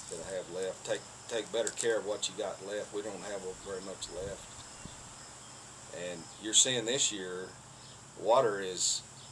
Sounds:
Speech

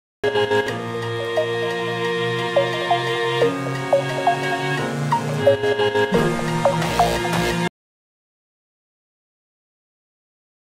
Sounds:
Music

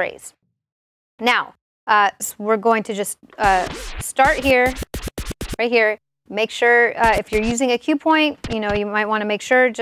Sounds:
disc scratching

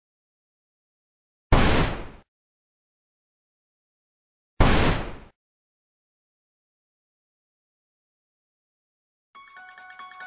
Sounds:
Music

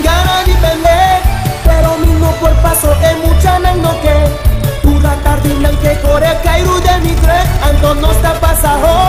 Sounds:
Music

